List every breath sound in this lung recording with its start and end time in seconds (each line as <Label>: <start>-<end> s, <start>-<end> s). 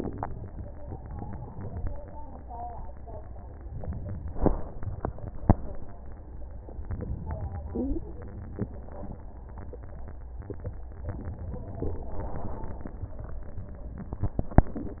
Inhalation: 3.62-4.46 s, 6.83-7.74 s